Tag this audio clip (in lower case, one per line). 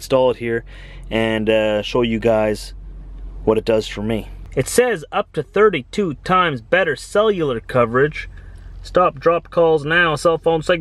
speech